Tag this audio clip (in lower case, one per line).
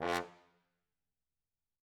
musical instrument
brass instrument
music